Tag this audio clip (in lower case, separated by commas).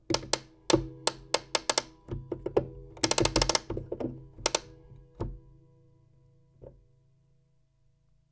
clock, mechanisms